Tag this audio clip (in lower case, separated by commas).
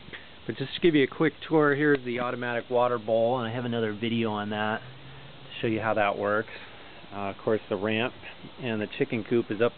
speech